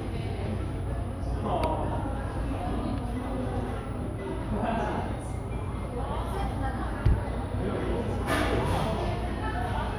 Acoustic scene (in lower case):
cafe